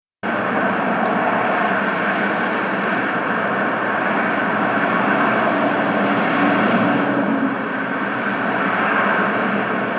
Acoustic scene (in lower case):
street